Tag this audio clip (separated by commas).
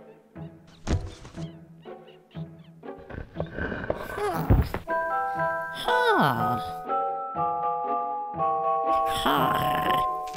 Music